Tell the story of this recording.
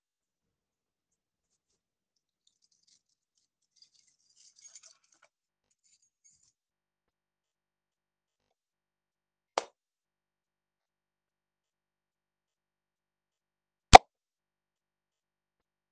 I picked up my keys and I stood next to the light switch and turned the light on. After a brief pause I switched the light back off. Then I went to another room and turned the light on.